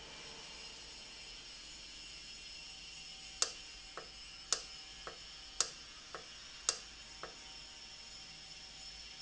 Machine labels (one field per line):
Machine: valve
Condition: normal